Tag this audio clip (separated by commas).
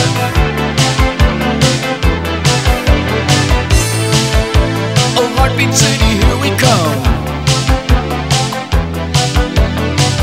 Music